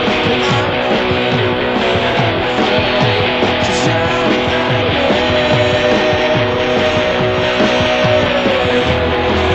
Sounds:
Music, Plucked string instrument, Musical instrument, Electric guitar, Guitar, Strum

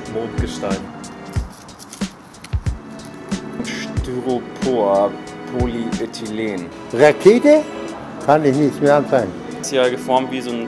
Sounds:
Speech, Music

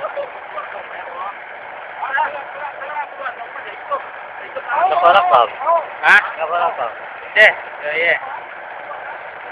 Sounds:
Speech, outside, urban or man-made

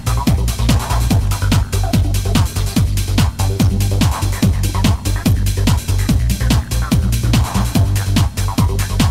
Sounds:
Trance music, Electronic music, Music

